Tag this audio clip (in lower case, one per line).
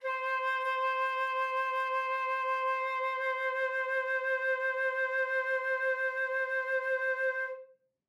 wind instrument
musical instrument
music